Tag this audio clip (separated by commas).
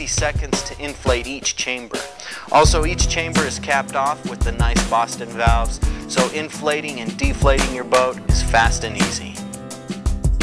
Speech, Music